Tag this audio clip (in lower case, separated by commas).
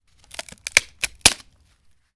wood, crack